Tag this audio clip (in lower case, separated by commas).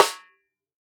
drum, music, musical instrument, snare drum, percussion